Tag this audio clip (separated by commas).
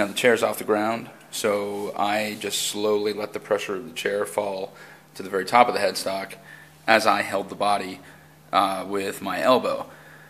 Speech